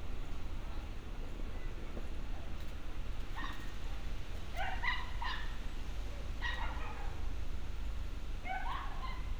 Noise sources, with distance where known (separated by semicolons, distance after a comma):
person or small group talking, far; dog barking or whining, far